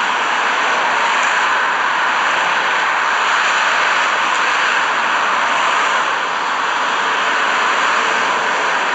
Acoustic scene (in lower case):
street